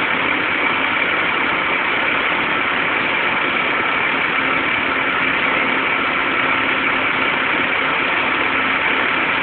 A large machine outdoors making engine sounds